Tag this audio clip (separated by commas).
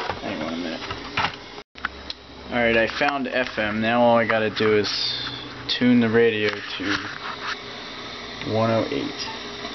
Speech